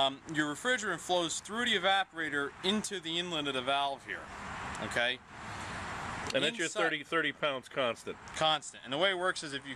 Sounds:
Speech

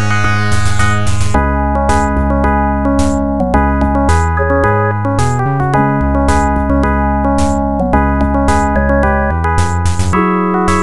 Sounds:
Soundtrack music, Music

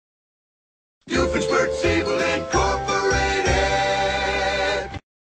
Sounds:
Music, Jingle (music)

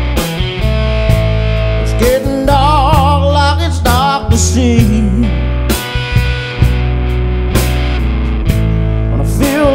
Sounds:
Music

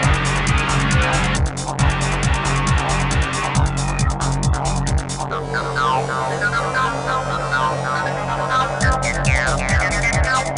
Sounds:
Exciting music, Soundtrack music, Music

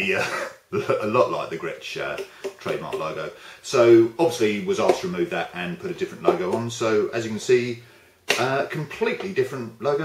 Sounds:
Speech

